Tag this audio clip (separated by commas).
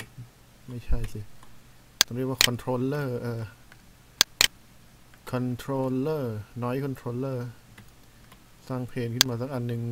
Speech